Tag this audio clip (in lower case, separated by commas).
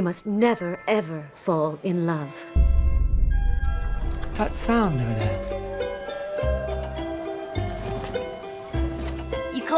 music, tick, speech